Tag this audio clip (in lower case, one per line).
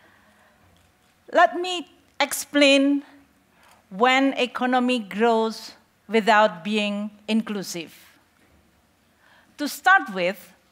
speech